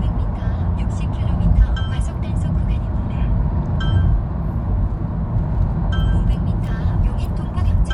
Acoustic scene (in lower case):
car